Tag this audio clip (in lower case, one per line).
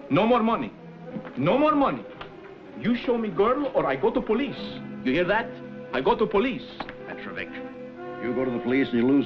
speech
music